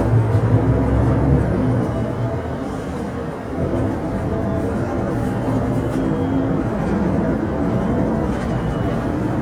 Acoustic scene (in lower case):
bus